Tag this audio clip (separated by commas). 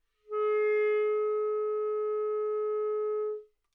Musical instrument, woodwind instrument, Music